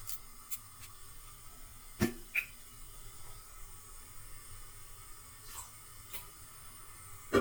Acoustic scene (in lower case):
kitchen